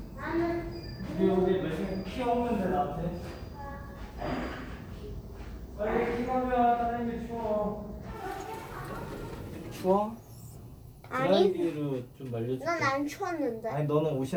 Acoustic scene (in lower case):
elevator